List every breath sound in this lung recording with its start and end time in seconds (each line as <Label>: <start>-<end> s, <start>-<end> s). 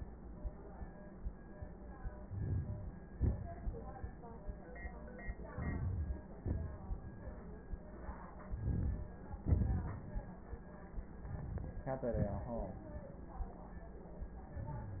Inhalation: 2.11-3.10 s, 5.43-6.38 s, 8.38-9.33 s, 10.96-11.82 s
Exhalation: 3.08-4.20 s, 6.40-7.69 s, 9.33-10.87 s, 11.84-13.30 s
Crackles: 2.13-3.06 s, 3.08-4.20 s, 5.43-6.38 s, 8.38-9.33 s, 9.33-10.87 s, 10.91-11.86 s